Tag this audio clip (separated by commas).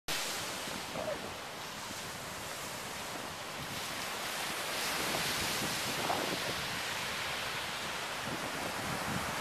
Ocean, ocean burbling